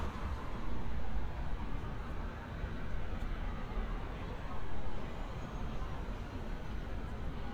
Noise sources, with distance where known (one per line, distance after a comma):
medium-sounding engine
car horn
siren
person or small group talking